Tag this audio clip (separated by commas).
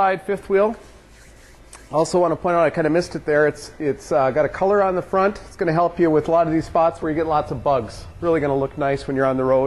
Speech